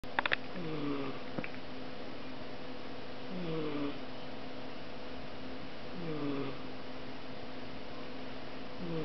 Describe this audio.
An animal is lightly snoring